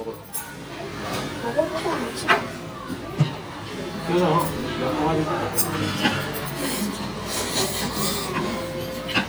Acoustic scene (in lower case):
restaurant